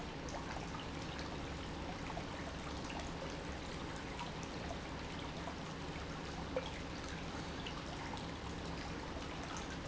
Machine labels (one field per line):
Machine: pump